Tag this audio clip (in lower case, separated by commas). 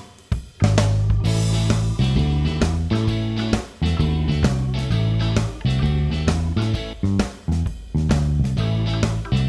music